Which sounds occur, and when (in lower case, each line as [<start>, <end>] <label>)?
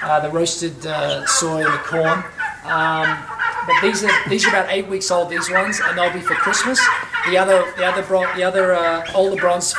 [0.00, 2.28] man speaking
[0.00, 9.75] gobble
[0.00, 9.75] mechanisms
[2.60, 3.25] man speaking
[3.44, 3.54] tick
[3.64, 9.75] man speaking
[6.97, 7.06] tick